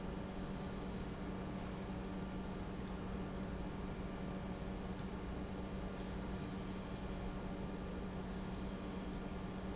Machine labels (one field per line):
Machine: pump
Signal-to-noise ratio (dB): 0 dB